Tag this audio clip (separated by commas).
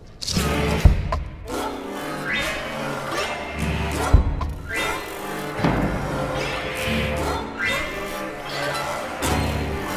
Music, Jingle (music)